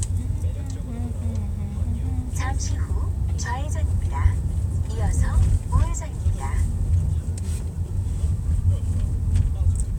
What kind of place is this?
car